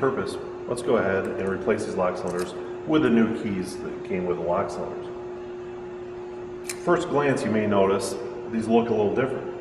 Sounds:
speech

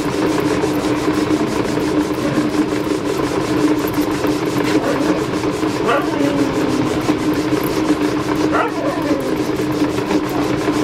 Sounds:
bow-wow, speech

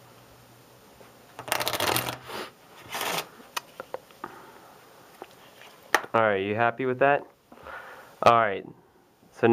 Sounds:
speech, shuffling cards

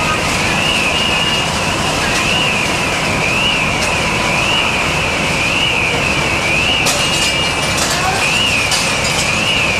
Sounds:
buzzer, crackle, speech

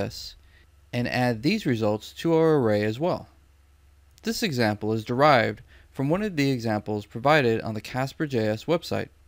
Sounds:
speech

